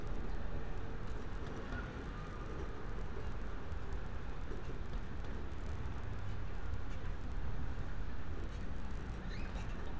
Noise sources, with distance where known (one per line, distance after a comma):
unidentified human voice